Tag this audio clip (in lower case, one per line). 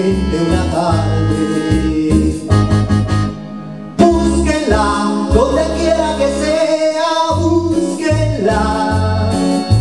guitar
musical instrument
inside a small room
singing
music
plucked string instrument